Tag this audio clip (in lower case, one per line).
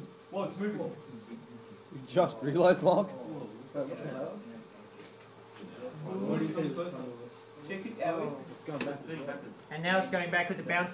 speech